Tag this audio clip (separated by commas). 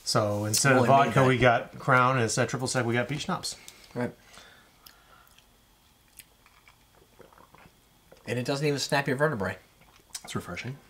Speech, inside a small room